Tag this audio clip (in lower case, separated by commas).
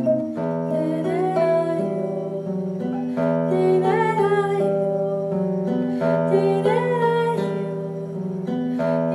guitar, music, musical instrument, plucked string instrument